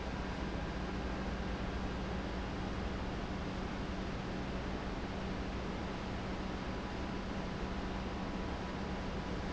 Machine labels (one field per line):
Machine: pump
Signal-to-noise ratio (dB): -6 dB